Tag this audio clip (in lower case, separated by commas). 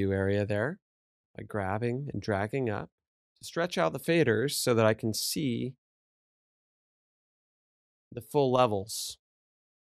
speech